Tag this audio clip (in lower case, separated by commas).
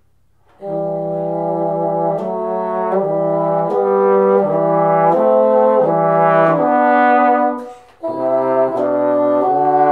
playing bassoon